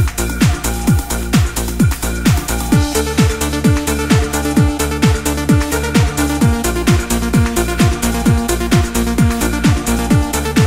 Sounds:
Music

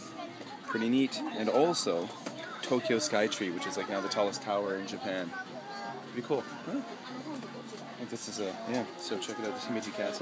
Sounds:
Speech, inside a public space

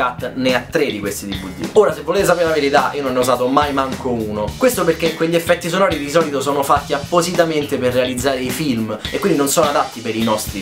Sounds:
Music, Speech

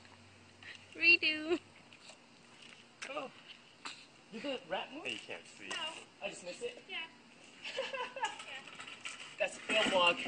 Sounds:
Speech

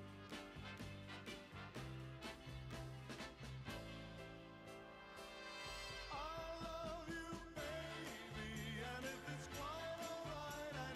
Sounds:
Music, Synthesizer

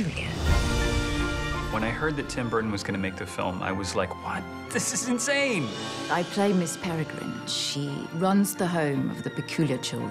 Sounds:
Speech, Music

